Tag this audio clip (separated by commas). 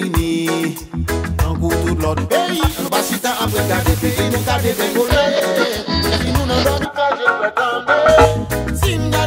Reggae, Music of Latin America, Music